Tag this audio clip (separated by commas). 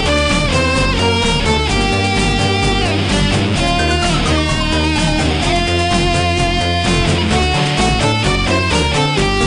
Musical instrument, Plucked string instrument, Guitar, Music